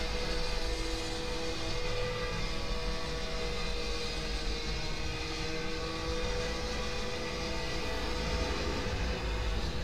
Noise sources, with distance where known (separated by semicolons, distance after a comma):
unidentified powered saw, far